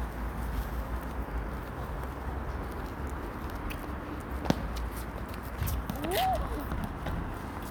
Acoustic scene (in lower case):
residential area